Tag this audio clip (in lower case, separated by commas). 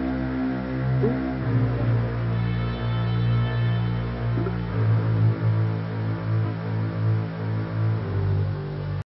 music